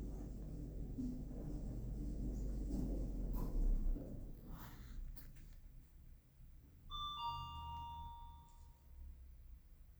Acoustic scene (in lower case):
elevator